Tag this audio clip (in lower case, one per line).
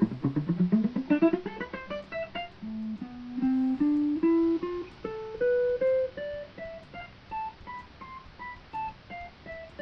electric guitar
musical instrument
bowed string instrument
guitar
plucked string instrument
music